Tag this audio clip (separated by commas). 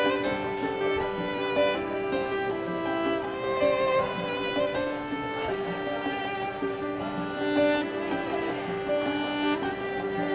Music, Bowed string instrument